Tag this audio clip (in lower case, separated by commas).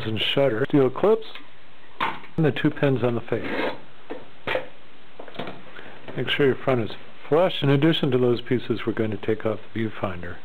speech